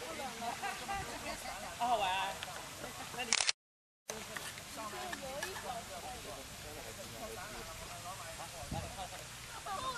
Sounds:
stream, speech

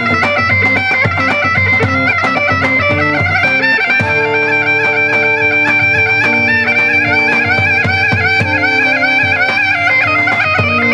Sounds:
wind instrument, bagpipes

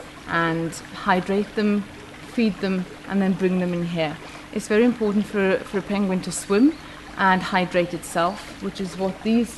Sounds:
speech

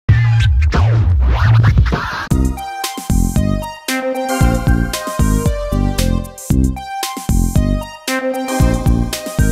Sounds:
music

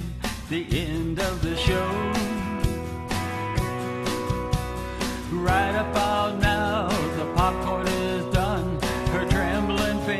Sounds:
music

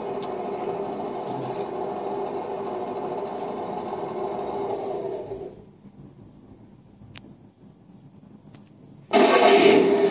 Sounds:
speech, car

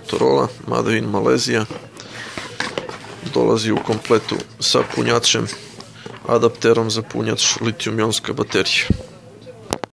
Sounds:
music, speech

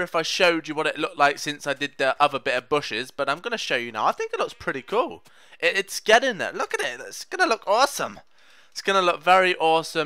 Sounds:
speech, bleat

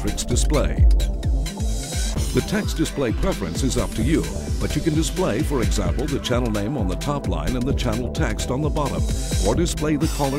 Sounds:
speech, radio, music

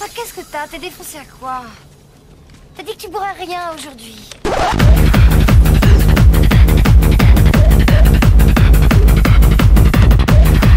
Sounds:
music, speech

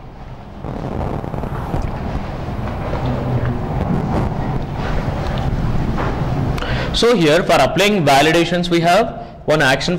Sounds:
speech, inside a small room

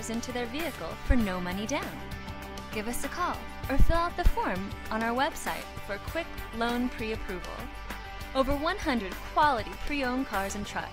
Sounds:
speech, music

